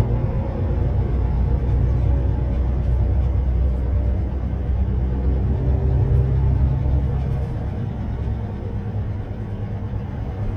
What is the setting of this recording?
bus